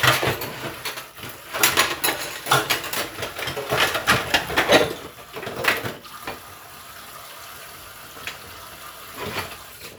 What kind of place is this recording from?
kitchen